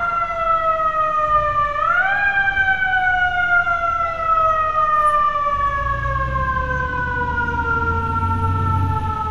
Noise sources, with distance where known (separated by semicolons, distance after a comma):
siren, near